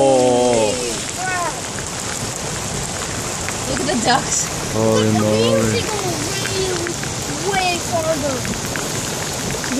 Rain pours as people talk